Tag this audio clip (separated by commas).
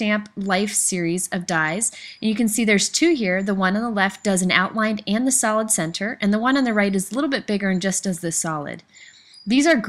Speech